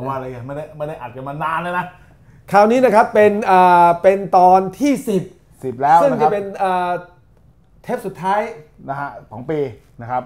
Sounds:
speech

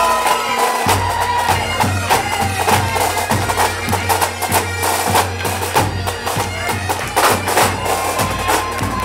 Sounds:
music, bagpipes

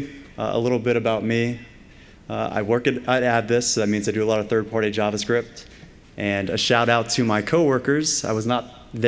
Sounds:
speech

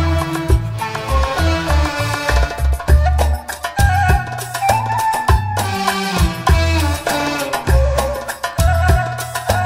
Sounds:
music, classical music

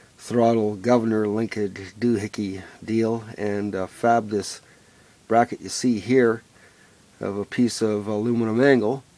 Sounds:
speech

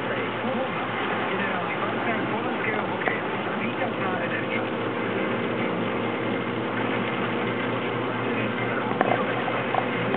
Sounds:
speech, vehicle, car

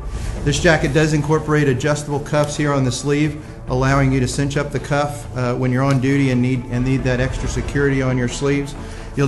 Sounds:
music, speech

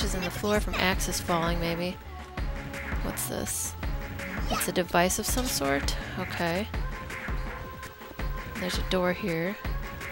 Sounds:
music, speech

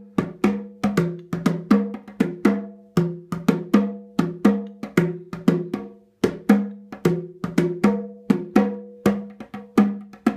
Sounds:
playing bongo

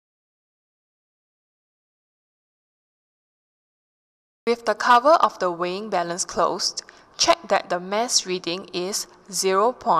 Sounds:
speech

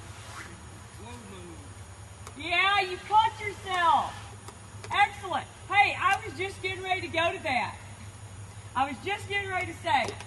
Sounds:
speech, outside, rural or natural

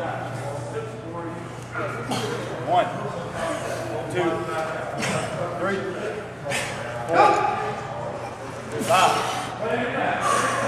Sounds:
speech, inside a large room or hall

